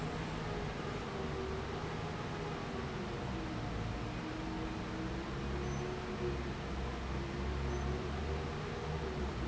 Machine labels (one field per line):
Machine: fan